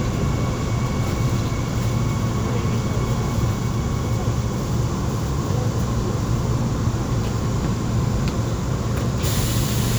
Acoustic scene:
subway train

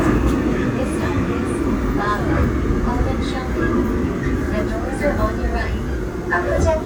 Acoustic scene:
subway train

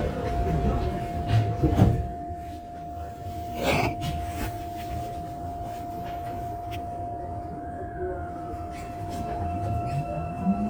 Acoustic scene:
subway train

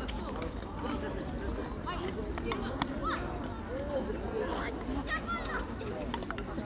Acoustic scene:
park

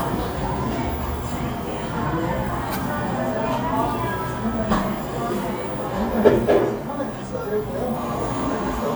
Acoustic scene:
cafe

